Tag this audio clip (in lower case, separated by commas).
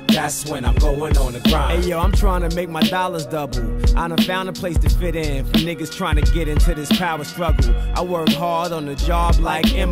music, hip hop music